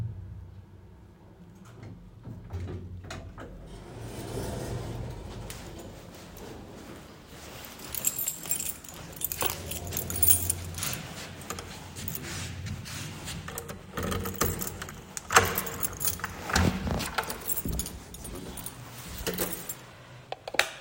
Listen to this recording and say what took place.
The elevator doors opened. I walked to my apartment, pulled my keys out of my pocket, and wiped my feet on the doormat while unlocking the door. I stepped inside and turned the lights on.